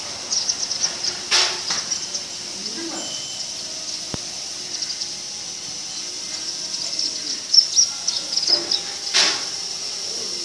A bird is tweeting followed by the voice of a man in the background